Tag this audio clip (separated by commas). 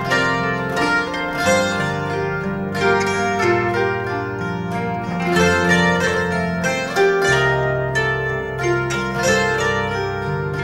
Harp, Musical instrument, Plucked string instrument, Music